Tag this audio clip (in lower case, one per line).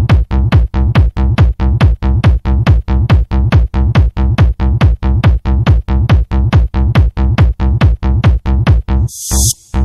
trance music
electronic music
music